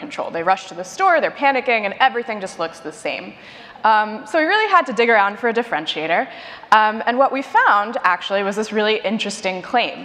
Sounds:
speech

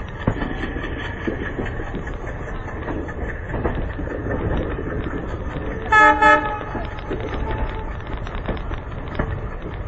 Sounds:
train horning

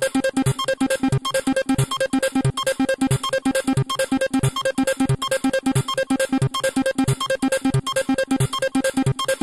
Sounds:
electronic music
music

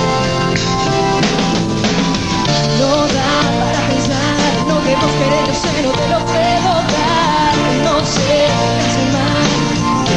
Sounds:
soundtrack music
music

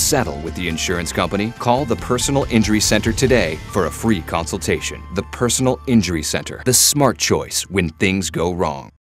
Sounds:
music
speech

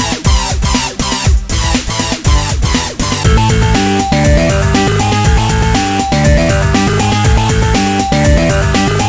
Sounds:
music

